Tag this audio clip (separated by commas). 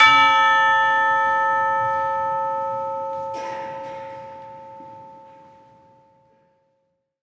Musical instrument, Bell, Church bell, Percussion, Music